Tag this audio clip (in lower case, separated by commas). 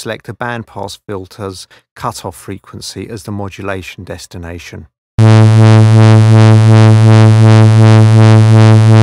speech, synthesizer